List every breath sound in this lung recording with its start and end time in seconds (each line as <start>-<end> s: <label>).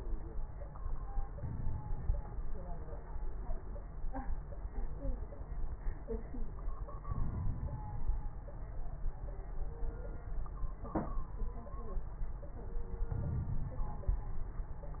1.35-2.17 s: inhalation
1.35-2.17 s: crackles
2.21-3.03 s: exhalation
7.05-8.01 s: inhalation
7.05-8.01 s: crackles
8.01-8.69 s: exhalation
8.03-8.69 s: crackles
13.10-14.07 s: inhalation
13.10-14.07 s: crackles
14.08-15.00 s: exhalation
14.08-15.00 s: crackles